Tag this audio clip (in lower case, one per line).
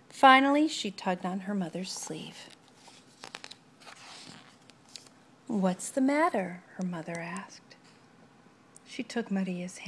inside a small room
speech